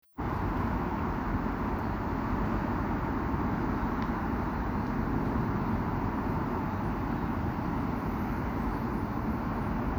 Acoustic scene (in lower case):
street